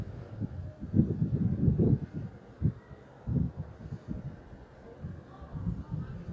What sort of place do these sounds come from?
residential area